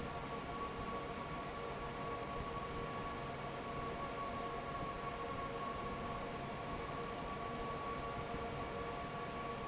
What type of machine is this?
fan